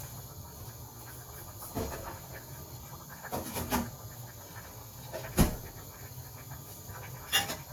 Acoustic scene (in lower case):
kitchen